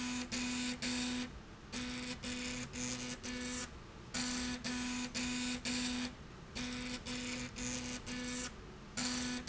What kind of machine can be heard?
slide rail